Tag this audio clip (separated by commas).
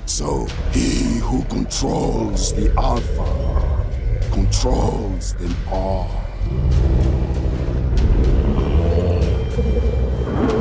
Music, Speech